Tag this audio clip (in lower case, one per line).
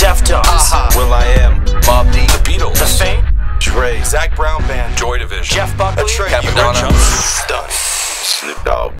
music
radio
speech